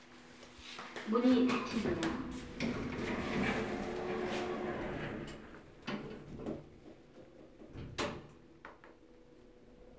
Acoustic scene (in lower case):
elevator